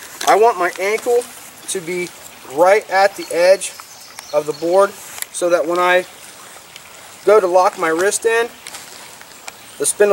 Running water with male speech and bird calls